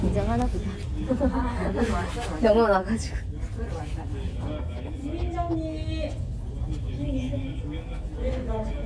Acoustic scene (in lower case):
crowded indoor space